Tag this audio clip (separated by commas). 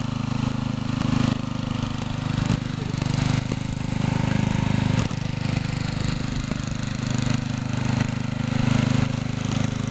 Vehicle